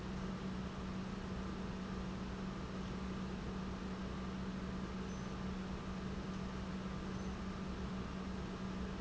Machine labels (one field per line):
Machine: pump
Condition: normal